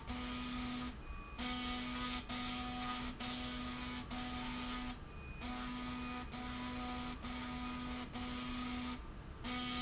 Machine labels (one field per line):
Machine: slide rail